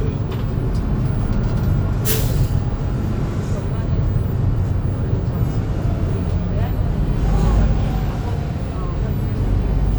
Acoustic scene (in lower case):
bus